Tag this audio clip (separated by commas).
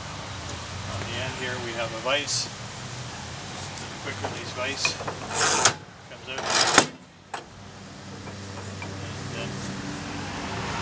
Speech